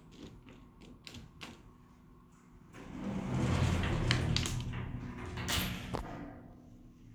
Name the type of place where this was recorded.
elevator